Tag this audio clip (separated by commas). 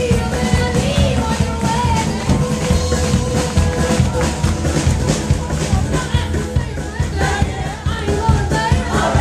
Music